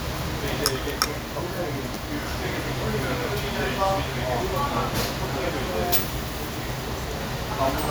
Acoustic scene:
restaurant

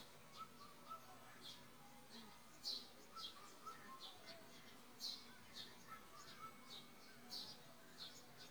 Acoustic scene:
park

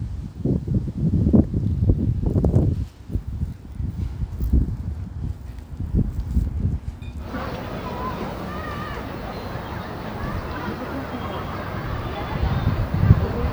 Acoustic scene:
residential area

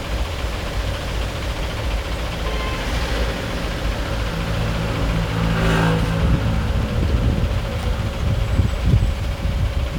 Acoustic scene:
street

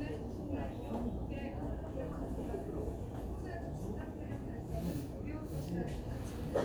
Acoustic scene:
crowded indoor space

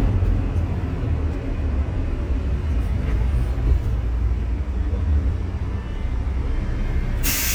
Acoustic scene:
bus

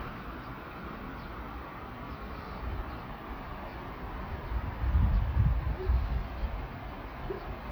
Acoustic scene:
park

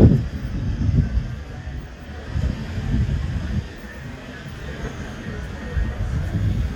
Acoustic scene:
street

